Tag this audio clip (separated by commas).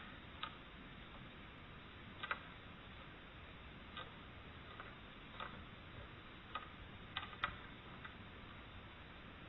mastication